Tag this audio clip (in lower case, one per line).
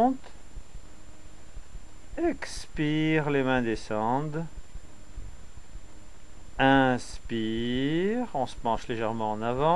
speech